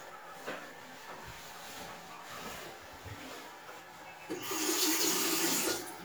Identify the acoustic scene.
restroom